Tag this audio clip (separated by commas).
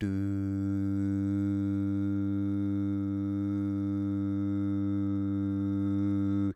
Human voice, Singing